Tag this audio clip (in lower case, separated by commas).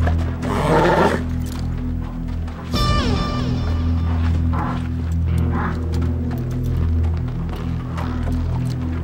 music, outside, rural or natural